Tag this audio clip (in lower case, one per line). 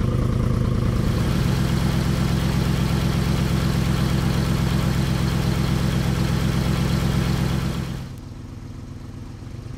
car
vehicle